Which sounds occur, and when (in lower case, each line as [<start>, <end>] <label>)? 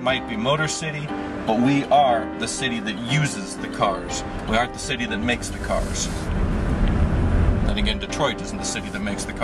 [0.00, 1.08] male speech
[0.00, 9.43] music
[1.47, 4.23] male speech
[4.48, 6.22] male speech
[5.21, 9.43] car
[6.27, 6.46] generic impact sounds
[6.79, 7.08] generic impact sounds
[7.70, 9.43] male speech